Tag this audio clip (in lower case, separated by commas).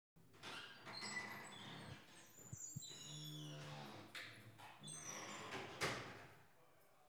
home sounds, wood, squeak, door